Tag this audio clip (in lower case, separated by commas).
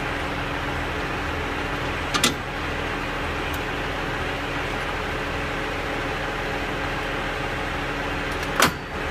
vehicle